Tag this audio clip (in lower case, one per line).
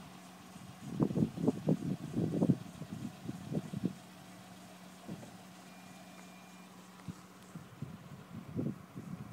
wind noise (microphone)
wind